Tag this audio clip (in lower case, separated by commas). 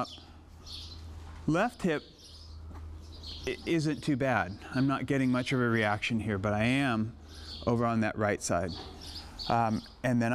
animal, speech